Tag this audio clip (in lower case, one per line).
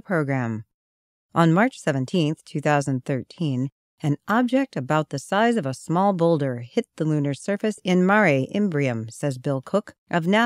speech